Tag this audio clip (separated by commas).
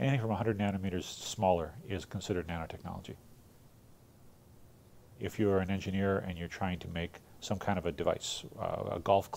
Speech